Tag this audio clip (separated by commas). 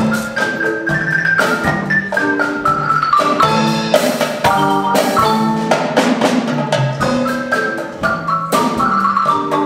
Music, Percussion